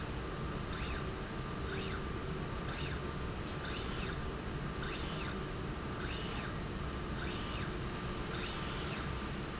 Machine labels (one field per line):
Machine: slide rail